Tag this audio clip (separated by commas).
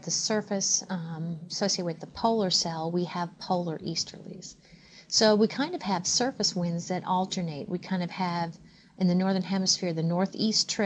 Speech